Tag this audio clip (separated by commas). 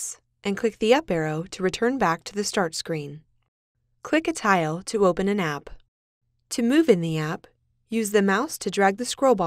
Speech